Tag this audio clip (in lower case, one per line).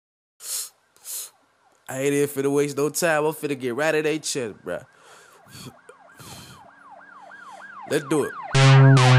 music
police car (siren)